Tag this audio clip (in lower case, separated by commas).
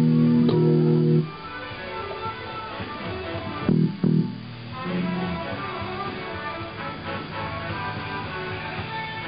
inside a large room or hall, musical instrument, guitar, plucked string instrument, bass guitar, music